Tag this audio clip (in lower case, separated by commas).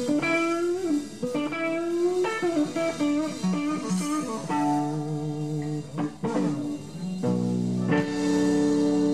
blues, music